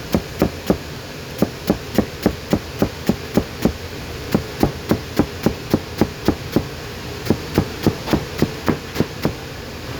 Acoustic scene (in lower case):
kitchen